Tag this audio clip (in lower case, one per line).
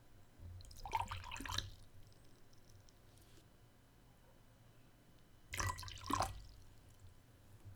liquid